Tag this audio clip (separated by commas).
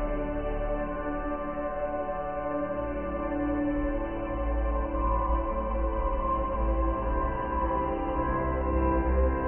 Music